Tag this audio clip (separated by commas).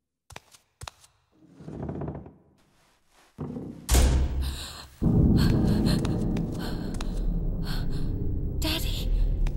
Speech